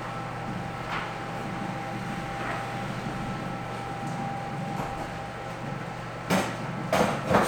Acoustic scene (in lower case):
cafe